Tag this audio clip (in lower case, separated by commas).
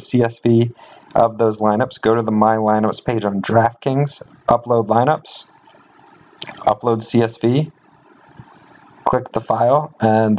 speech